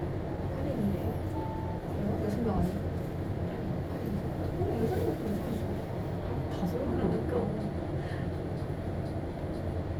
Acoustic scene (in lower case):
elevator